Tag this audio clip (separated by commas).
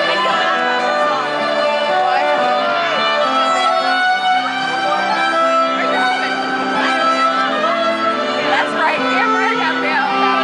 Sad music, Speech, Music